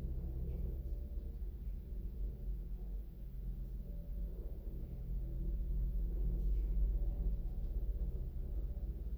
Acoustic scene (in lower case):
elevator